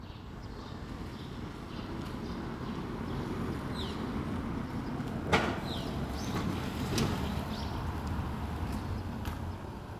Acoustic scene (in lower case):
residential area